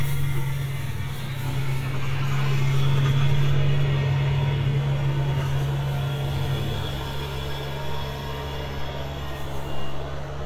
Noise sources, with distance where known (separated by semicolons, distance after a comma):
large-sounding engine, near